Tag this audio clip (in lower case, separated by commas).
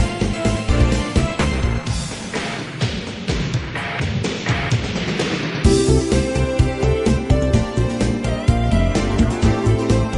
music